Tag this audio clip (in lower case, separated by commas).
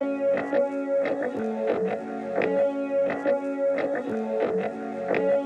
plucked string instrument, music, guitar, musical instrument